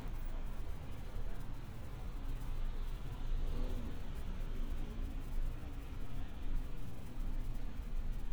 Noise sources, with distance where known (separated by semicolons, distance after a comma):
engine of unclear size, far